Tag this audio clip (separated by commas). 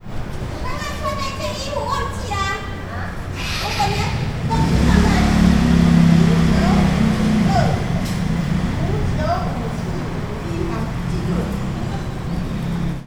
Engine